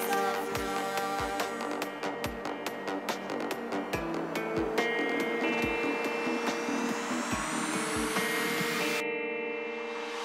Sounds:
trance music, music

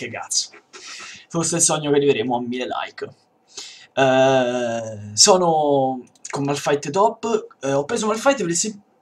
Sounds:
speech

